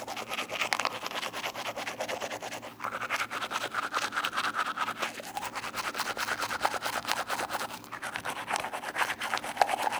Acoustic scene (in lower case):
restroom